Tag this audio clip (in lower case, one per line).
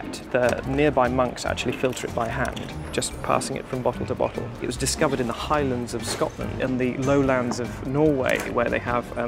music
speech